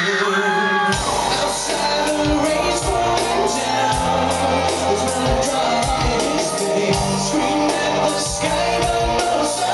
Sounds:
singing, music, inside a large room or hall

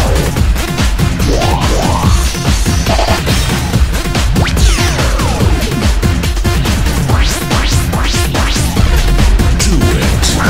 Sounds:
music

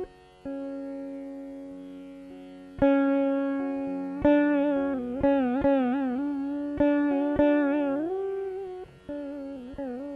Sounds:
tapping (guitar technique), music, plucked string instrument

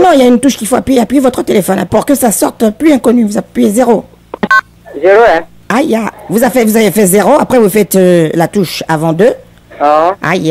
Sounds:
speech

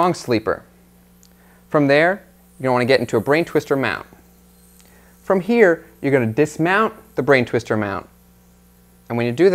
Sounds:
speech

